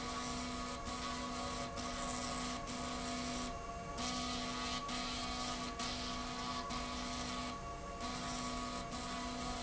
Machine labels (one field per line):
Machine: slide rail